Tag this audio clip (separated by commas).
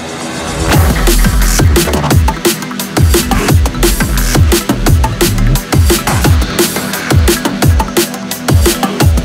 Dubstep, Music